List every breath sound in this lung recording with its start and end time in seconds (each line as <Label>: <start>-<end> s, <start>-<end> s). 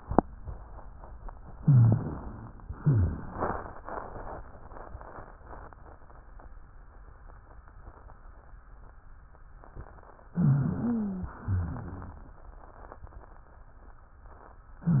Inhalation: 1.56-2.64 s, 10.34-11.37 s
Exhalation: 2.75-3.66 s, 11.42-12.30 s
Rhonchi: 1.59-2.09 s, 2.75-3.25 s, 10.34-11.37 s, 11.42-12.30 s